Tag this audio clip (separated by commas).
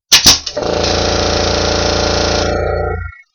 Tools